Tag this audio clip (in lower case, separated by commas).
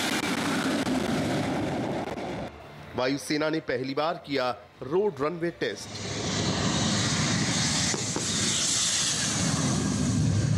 fixed-wing aircraft, vehicle, speech, music, outside, rural or natural, aircraft